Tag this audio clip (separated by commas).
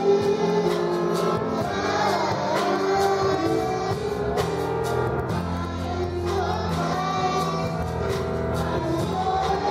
Child singing, Choir, Music